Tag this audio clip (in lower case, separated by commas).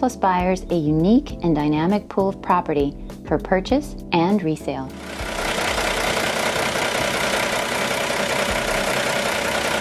speech, music, truck, vehicle